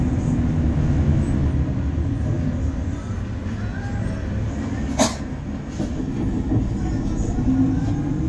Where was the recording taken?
on a bus